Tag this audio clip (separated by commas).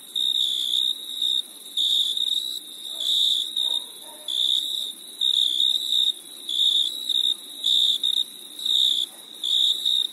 cricket chirping